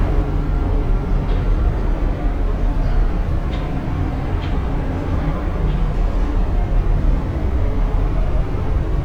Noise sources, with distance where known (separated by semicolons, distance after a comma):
engine of unclear size, near